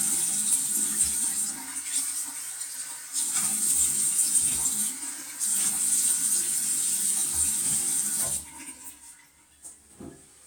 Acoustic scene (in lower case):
restroom